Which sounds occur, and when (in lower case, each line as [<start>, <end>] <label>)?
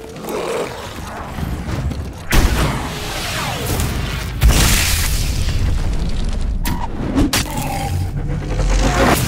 [0.00, 1.53] groan
[0.00, 9.25] video game sound
[1.62, 2.02] sound effect
[2.24, 2.81] artillery fire
[2.73, 4.30] sound effect
[4.37, 5.79] explosion
[5.93, 6.42] generic impact sounds
[6.58, 6.86] generic impact sounds
[6.82, 7.28] sound effect
[7.27, 7.43] generic impact sounds
[7.37, 8.04] groan
[8.08, 9.25] sound effect